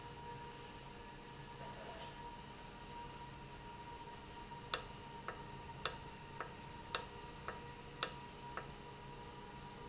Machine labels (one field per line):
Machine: valve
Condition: normal